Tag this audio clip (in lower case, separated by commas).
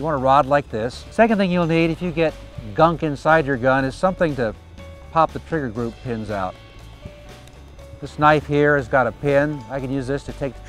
music, speech